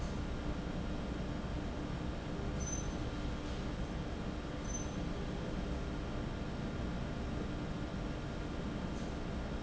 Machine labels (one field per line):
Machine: fan